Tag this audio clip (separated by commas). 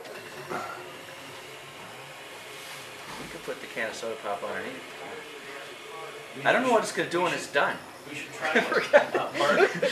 Speech